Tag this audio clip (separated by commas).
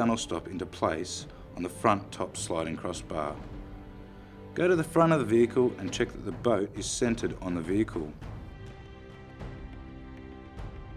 Speech, Music